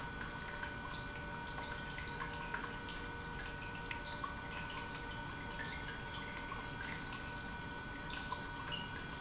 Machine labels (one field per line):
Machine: pump